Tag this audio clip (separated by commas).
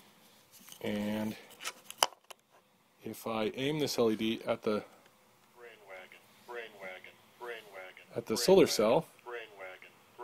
Speech